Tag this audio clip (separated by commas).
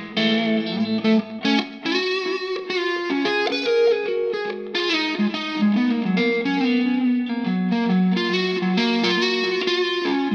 Plucked string instrument, Music, Distortion, Guitar, Electric guitar, Musical instrument